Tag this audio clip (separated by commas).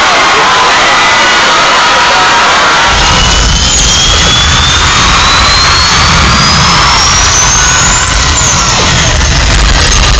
Music